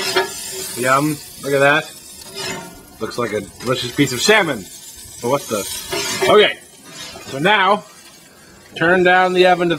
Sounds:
inside a small room, Speech

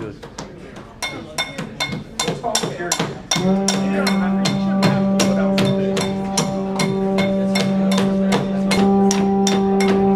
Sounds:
Speech, Music, Male speech

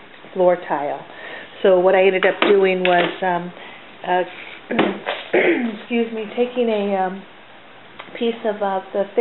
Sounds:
Speech, inside a small room

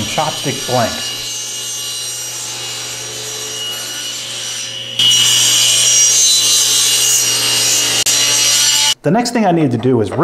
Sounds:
Speech, Tools

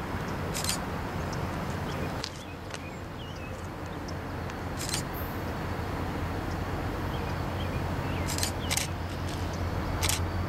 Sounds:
Rail transport, Railroad car, Vehicle, Train

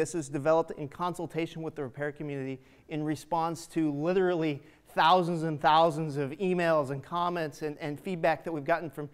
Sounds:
Speech

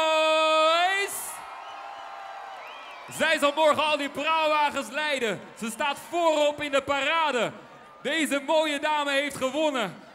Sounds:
Speech

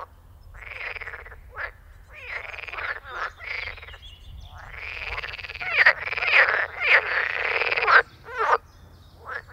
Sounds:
frog croaking

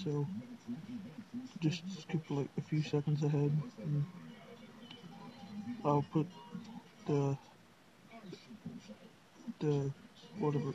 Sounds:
Speech

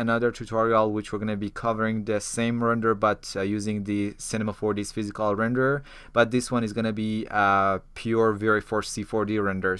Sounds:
Speech

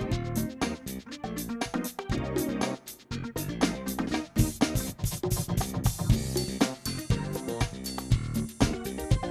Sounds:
Music, Drum kit, Drum, Musical instrument

